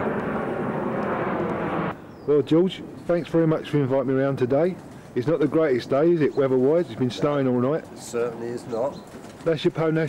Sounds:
bird, chirp, bird vocalization

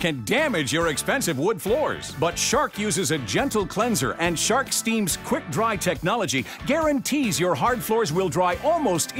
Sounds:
music, speech

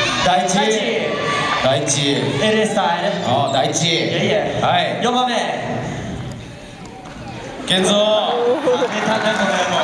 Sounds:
speech

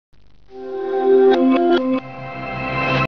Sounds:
music

